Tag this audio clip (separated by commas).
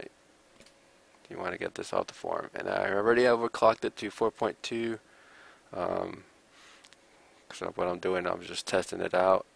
Speech